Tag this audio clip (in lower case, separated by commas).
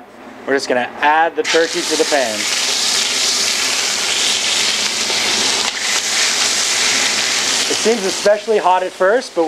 speech